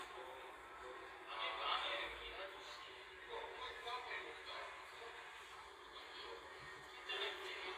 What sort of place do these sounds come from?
crowded indoor space